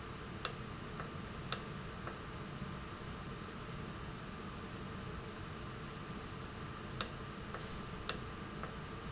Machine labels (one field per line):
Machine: valve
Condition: normal